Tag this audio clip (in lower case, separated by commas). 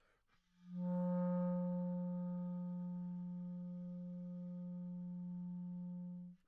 music, wind instrument, musical instrument